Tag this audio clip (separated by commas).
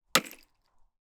Tools, Hammer